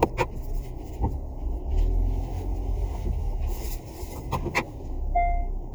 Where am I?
in a car